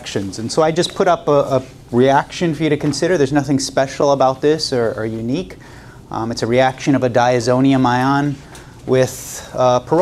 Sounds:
Speech

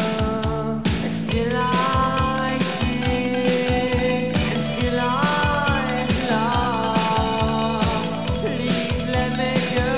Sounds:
Music

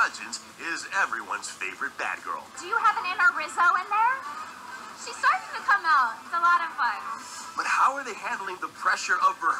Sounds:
Music, Speech

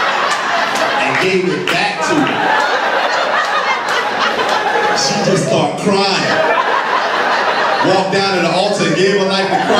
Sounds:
Speech

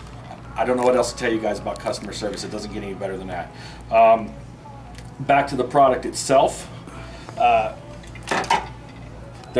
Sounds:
inside a small room, Speech

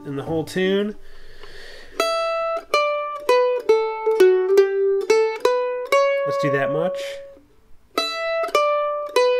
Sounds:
playing mandolin

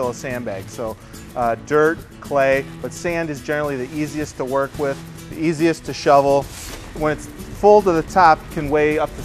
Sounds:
Music, Speech

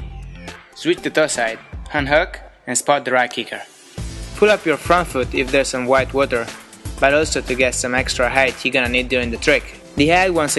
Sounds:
Speech, Music

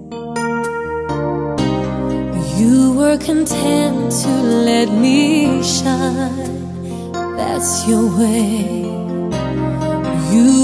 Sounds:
Music

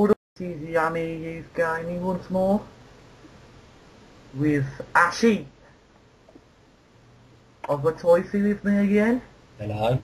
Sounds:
Speech

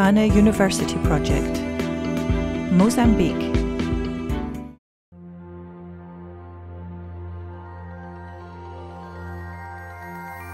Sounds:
New-age music

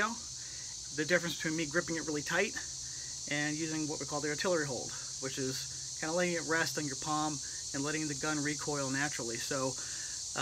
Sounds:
outside, rural or natural, Speech

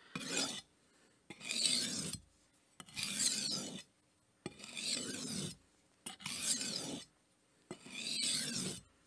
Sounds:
sharpen knife

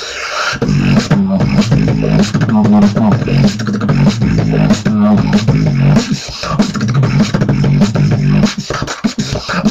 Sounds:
Beatboxing

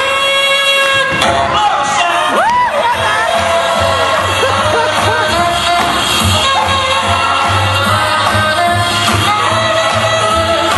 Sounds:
Music, Speech

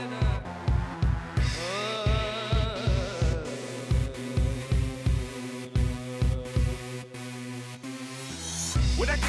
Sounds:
Music

